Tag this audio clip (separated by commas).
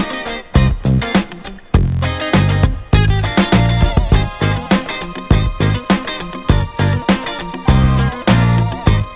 Music